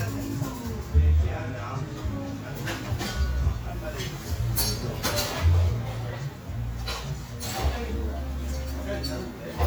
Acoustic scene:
cafe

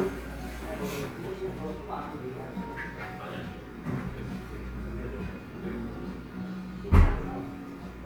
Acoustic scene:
cafe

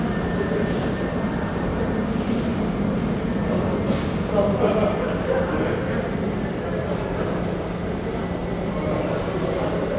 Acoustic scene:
subway station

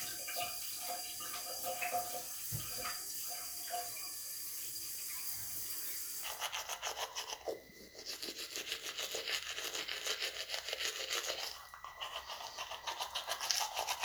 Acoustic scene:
restroom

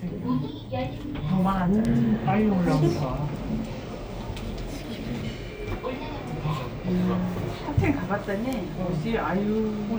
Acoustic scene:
elevator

